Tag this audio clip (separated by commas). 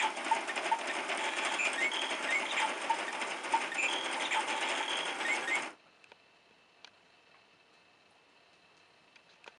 Gears, Ratchet, Mechanisms